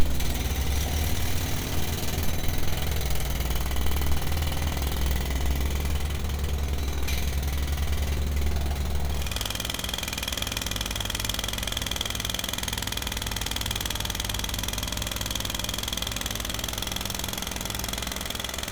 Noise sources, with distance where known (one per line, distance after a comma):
jackhammer, near